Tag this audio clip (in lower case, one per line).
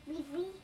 human voice
speech
child speech